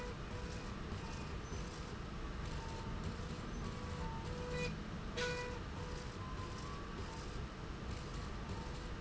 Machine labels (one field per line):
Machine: slide rail